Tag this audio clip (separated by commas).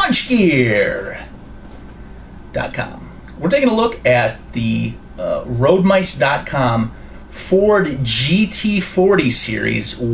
Speech